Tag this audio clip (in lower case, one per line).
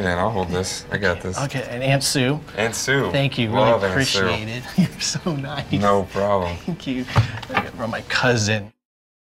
speech